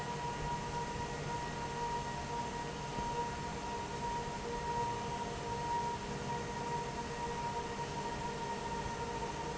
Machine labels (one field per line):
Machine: fan